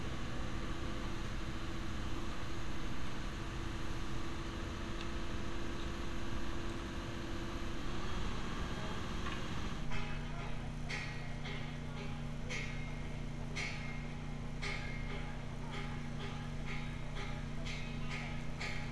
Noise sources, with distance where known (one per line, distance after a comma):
unidentified impact machinery